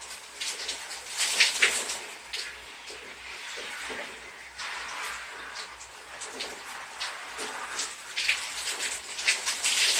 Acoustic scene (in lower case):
restroom